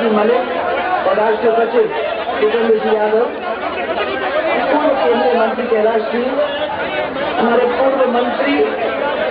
Man publicly speaking in foreign language